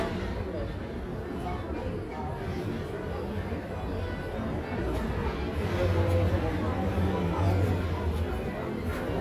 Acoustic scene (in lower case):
crowded indoor space